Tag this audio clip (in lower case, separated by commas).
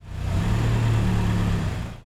car, vroom, vehicle, motor vehicle (road), engine